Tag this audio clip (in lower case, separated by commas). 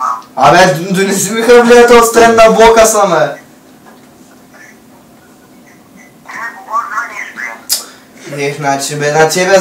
man speaking, telephone, speech